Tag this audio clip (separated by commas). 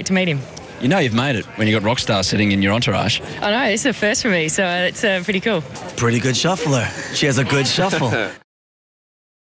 Speech